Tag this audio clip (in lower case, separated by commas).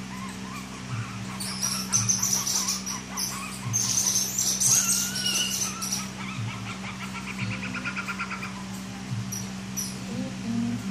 bird call, bird